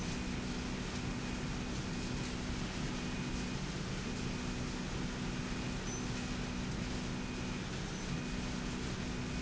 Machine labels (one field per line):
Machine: slide rail